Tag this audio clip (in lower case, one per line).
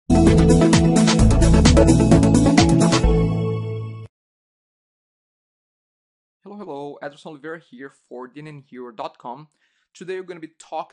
speech
music